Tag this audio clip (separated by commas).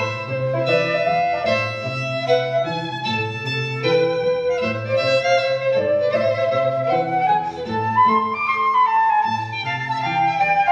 Musical instrument, Music, fiddle